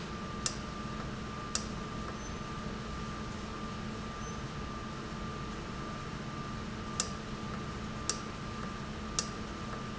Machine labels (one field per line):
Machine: valve